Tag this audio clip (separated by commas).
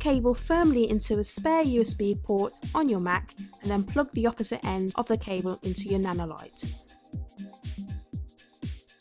Music, Speech